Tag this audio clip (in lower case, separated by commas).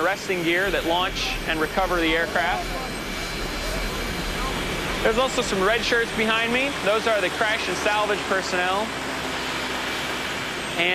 outside, rural or natural, speech, aircraft, vehicle